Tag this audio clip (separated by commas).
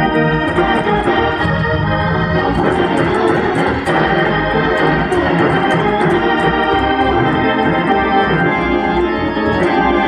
playing hammond organ